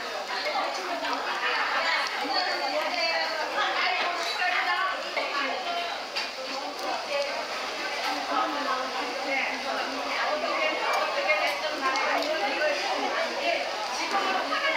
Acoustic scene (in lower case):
restaurant